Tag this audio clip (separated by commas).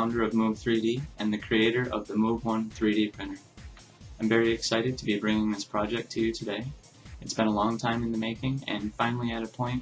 Speech, Music